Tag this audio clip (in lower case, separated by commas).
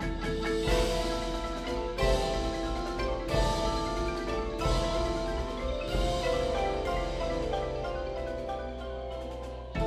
percussion, music